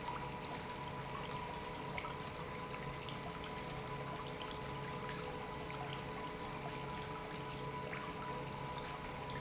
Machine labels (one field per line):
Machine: pump